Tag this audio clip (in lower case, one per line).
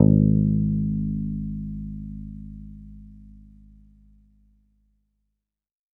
musical instrument
bass guitar
plucked string instrument
guitar
music